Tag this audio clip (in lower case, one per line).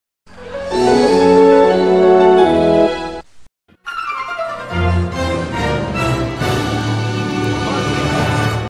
television
music